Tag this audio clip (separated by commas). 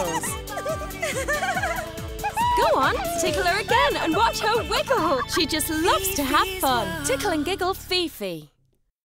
Speech, Music, Giggle